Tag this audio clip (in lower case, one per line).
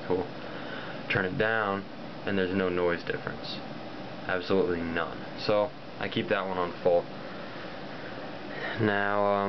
white noise
speech